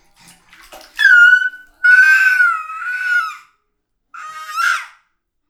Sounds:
Human voice, sobbing, Screech

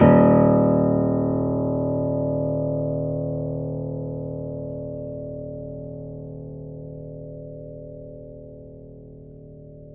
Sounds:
Music, Keyboard (musical), Piano, Musical instrument

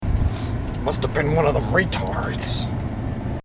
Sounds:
Human voice, Speech

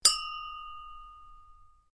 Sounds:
Chink, Glass

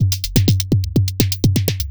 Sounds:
Percussion, Drum kit, Musical instrument, Music

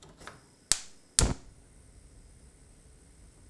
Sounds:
Fire

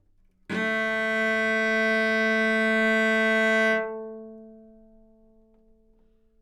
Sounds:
Musical instrument, Bowed string instrument, Music

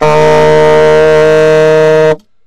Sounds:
Wind instrument, Music, Musical instrument

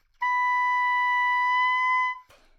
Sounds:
Musical instrument, Wind instrument, Music

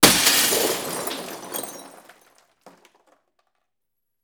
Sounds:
Glass, Shatter

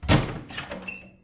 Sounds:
Door, Squeak, home sounds, Wood

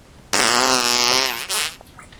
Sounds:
Fart

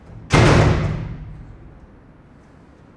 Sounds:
Domestic sounds, Slam, Door

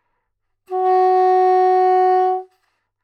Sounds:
Musical instrument, Wind instrument, Music

